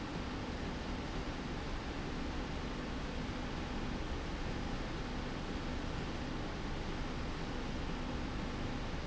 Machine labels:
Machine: slide rail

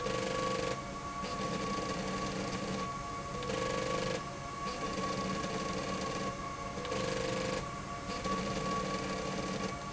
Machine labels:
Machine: slide rail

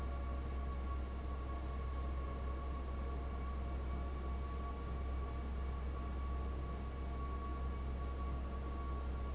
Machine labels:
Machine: fan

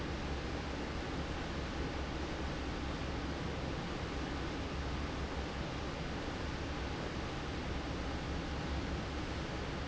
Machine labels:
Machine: fan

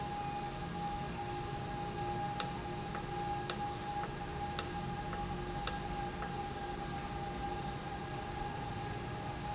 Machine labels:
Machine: valve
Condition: normal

